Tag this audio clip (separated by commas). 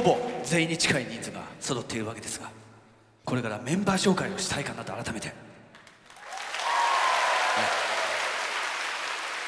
Speech, Applause